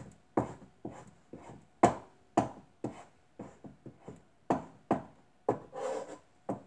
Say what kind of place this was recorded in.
kitchen